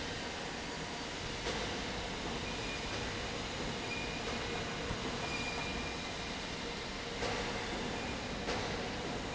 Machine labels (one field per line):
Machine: fan